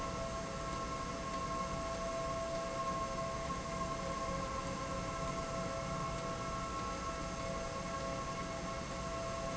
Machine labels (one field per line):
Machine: slide rail